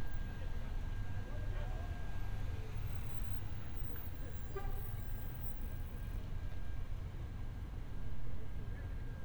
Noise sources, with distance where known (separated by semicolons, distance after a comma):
unidentified impact machinery, far